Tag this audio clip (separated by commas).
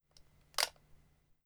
Mechanisms, Camera